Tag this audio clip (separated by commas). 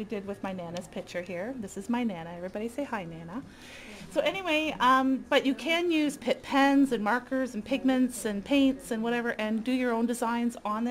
Speech